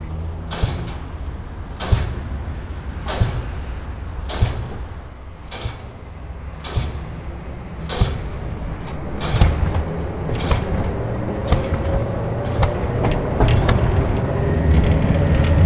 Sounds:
Tools, Hammer

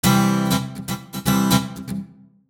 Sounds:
Plucked string instrument, Guitar, Musical instrument, Music

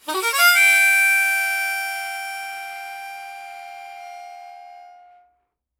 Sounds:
Harmonica, Music, Musical instrument

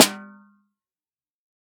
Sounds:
Musical instrument, Percussion, Snare drum, Music, Drum

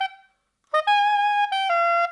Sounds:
woodwind instrument, Musical instrument, Music

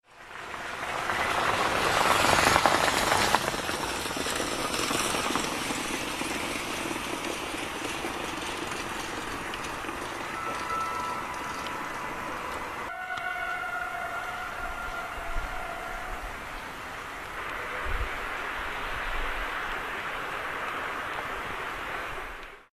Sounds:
Rail transport, Train, Vehicle

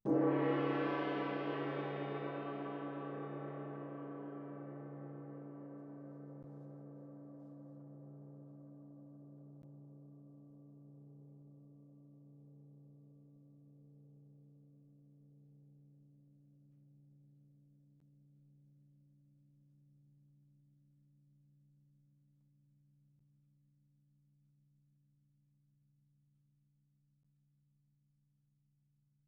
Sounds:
Music, Percussion, Gong, Musical instrument

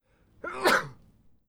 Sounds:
Sneeze, Respiratory sounds

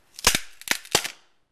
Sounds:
Crack, Wood

